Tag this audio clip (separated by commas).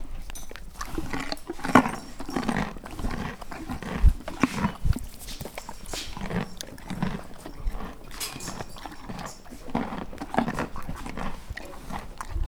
livestock, Animal